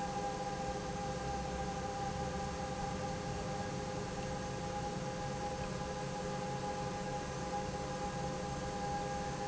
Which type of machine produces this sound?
pump